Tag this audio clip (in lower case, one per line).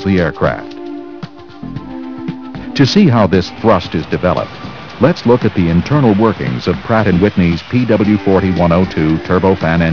speech
jet engine
music